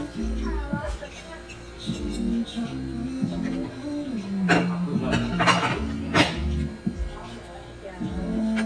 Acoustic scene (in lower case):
crowded indoor space